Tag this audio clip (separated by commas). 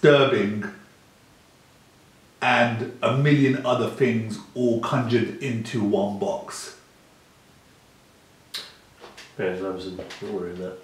Speech, inside a large room or hall